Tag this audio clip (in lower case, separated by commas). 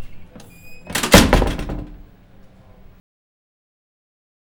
domestic sounds, squeak, human group actions, slam, door